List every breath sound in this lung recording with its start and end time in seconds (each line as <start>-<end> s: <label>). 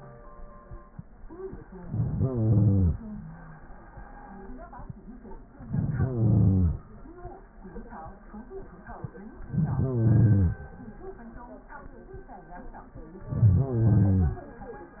1.64-3.14 s: inhalation
5.48-6.93 s: inhalation
9.41-10.72 s: inhalation
13.12-14.42 s: inhalation